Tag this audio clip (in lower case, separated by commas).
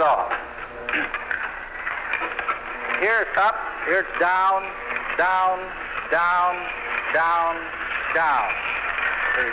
speech